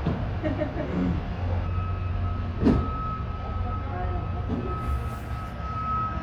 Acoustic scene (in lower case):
residential area